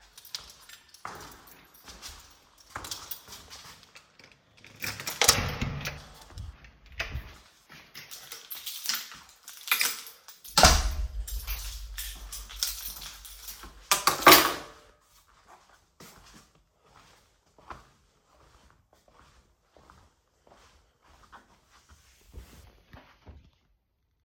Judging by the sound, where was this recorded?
hallway